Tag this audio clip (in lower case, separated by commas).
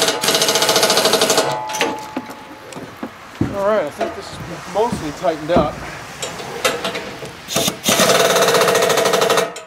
outside, urban or man-made, speech